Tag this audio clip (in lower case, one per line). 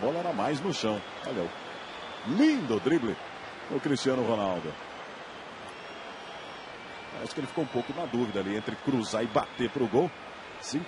speech